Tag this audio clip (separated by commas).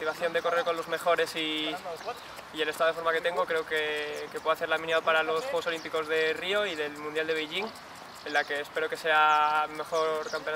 outside, urban or man-made, Speech